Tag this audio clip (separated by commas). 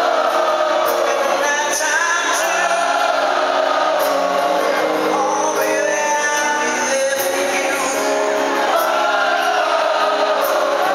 Male singing, Music